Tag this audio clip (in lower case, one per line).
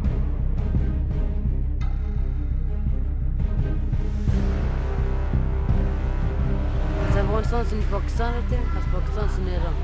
music
speech